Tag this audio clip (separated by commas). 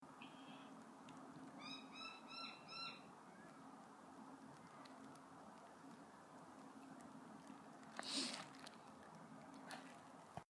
Bird, Chirp, Wild animals, Animal, Bird vocalization